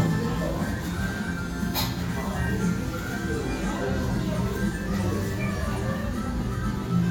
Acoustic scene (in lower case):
restaurant